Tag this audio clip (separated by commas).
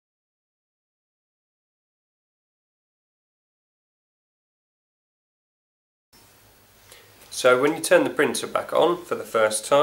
Speech